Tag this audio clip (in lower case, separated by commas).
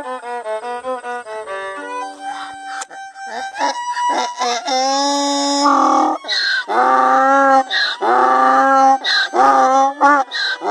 ass braying